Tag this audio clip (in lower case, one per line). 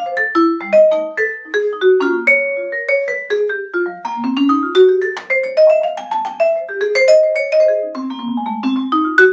playing vibraphone